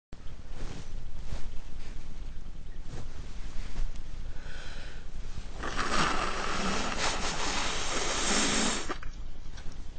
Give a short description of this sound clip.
A person sneezes in slow motion